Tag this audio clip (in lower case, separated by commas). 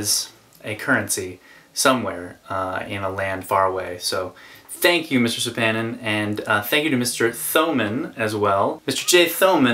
speech